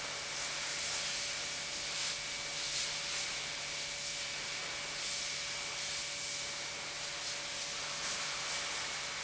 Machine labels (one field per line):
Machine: pump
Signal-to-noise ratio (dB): -6 dB